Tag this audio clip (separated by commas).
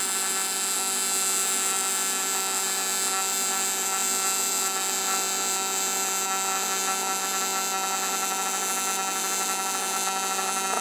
inside a small room